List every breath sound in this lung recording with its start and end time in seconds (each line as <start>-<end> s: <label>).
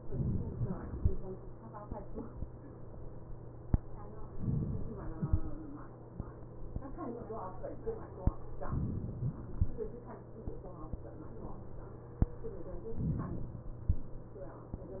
0.00-0.96 s: inhalation
4.41-5.26 s: inhalation
8.71-9.56 s: inhalation
13.05-13.86 s: inhalation